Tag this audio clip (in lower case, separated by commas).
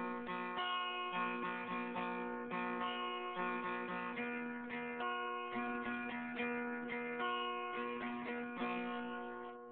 music, musical instrument, plucked string instrument, acoustic guitar, strum, guitar